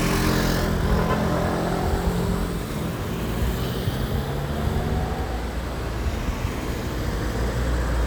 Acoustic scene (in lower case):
street